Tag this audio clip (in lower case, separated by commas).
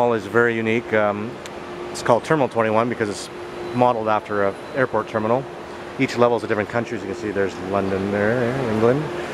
speech